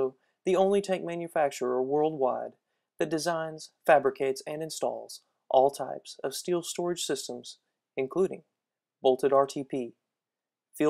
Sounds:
Speech

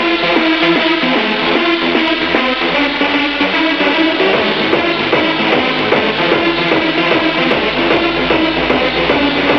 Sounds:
Music

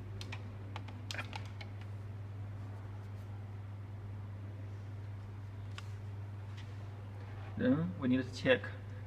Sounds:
Speech, Single-lens reflex camera

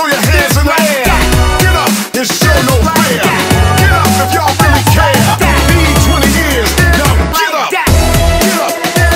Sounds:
Music

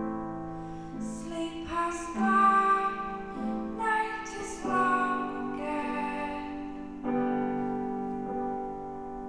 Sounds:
Lullaby, Music

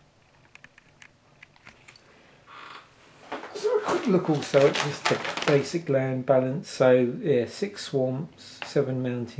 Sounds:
inside a small room, Speech

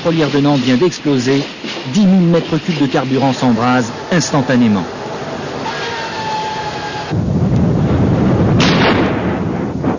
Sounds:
Explosion, Speech, Fire

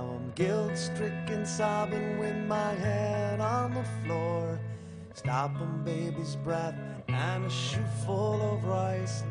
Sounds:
Music

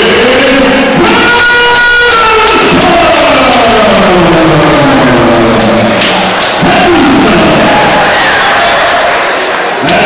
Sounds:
Speech, inside a large room or hall

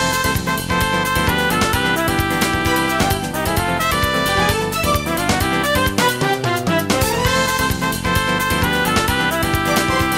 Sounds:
Music

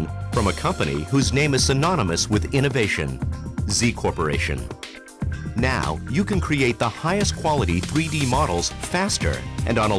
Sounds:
Music, Speech

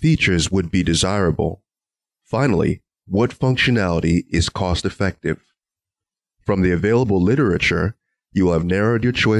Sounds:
Speech

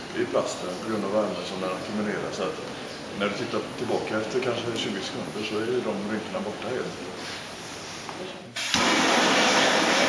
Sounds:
Speech

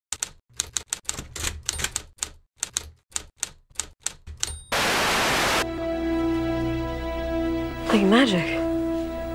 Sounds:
Speech, Music

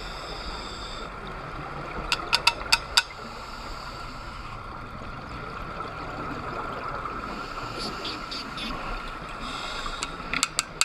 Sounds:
scuba diving

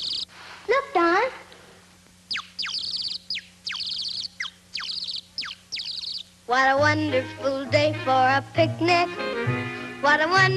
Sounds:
Speech

